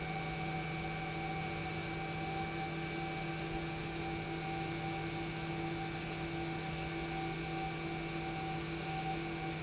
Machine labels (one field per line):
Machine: pump